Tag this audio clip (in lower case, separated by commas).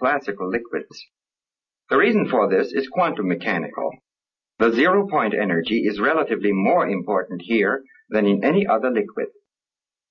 speech